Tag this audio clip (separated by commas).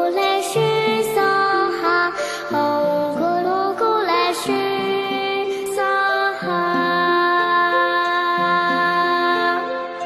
Mantra, Music